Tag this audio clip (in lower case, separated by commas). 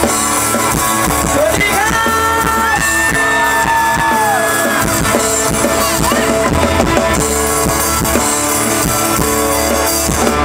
music, speech